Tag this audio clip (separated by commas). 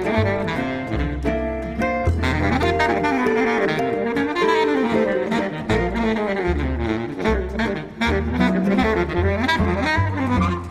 Music, Blues, Musical instrument, playing double bass, Saxophone, Jazz, Double bass